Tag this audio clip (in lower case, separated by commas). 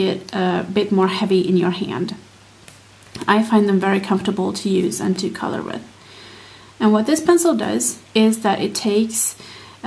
speech